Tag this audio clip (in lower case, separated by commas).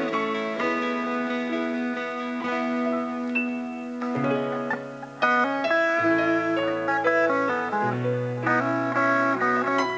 musical instrument, guitar, music, plucked string instrument